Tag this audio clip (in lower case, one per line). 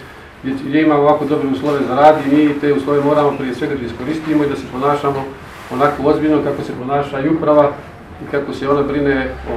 speech